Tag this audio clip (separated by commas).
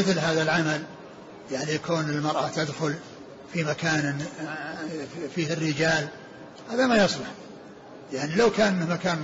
Speech